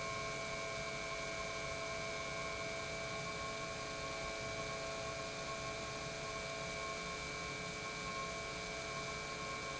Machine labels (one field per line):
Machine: pump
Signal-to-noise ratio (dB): 0 dB